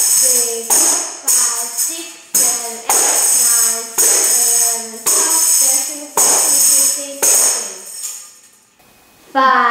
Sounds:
tambourine
music
speech

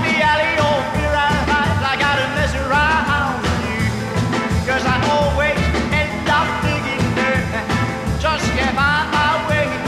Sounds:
music

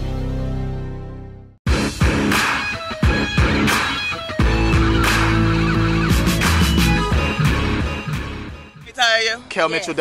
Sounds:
speech
music

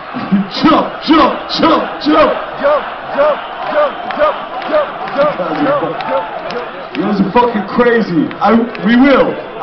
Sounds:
man speaking
speech
narration

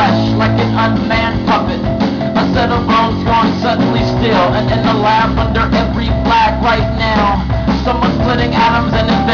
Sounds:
music

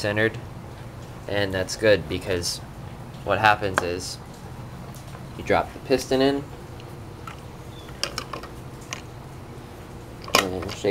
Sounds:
inside a small room
speech

